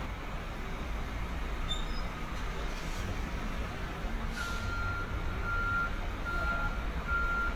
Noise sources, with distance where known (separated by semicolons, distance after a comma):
large-sounding engine, near; reverse beeper, near